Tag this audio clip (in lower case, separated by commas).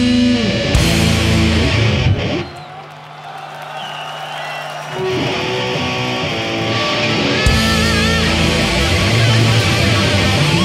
music